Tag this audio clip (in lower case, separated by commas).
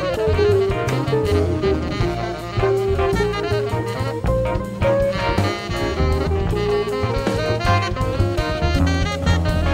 wind instrument, playing saxophone, musical instrument, jazz, saxophone, music